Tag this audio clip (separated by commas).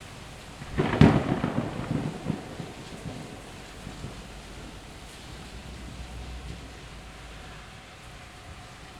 Water, Thunderstorm, Thunder, Rain